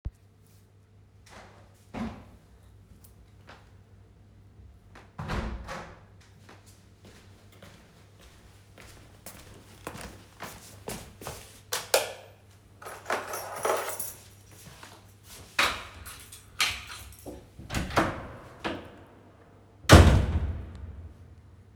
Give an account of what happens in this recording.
I shut the bathroom window, walked to the hallway and turned on the lamp. Picked up the key and opened the front door.